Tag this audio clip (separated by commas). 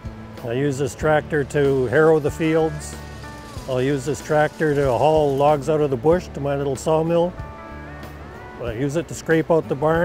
Speech, Music